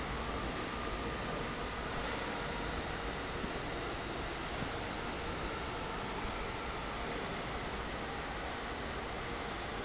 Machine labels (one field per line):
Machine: fan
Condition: normal